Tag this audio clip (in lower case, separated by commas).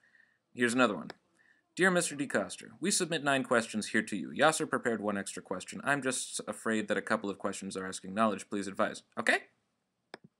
speech